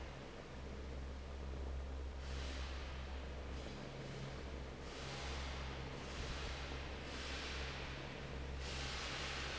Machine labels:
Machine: fan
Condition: normal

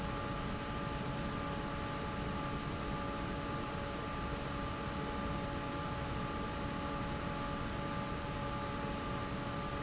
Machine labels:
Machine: fan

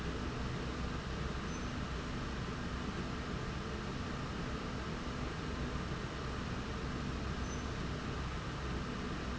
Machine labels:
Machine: slide rail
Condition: normal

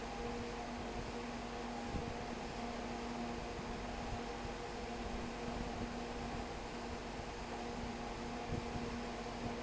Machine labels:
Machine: fan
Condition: abnormal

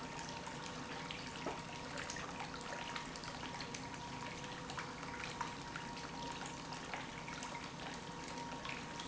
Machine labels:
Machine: pump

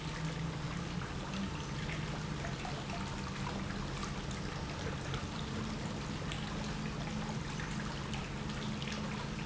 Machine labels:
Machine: pump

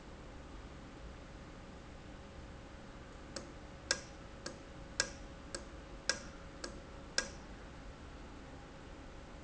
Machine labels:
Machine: valve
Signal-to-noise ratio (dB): 6 dB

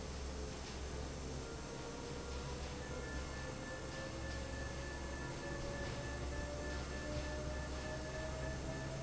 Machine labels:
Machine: fan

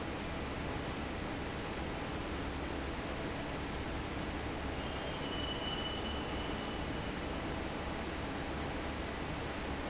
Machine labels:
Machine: fan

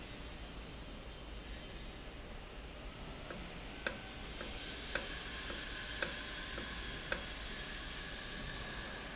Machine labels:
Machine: valve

